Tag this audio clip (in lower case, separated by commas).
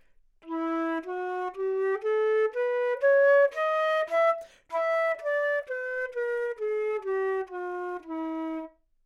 musical instrument, woodwind instrument, music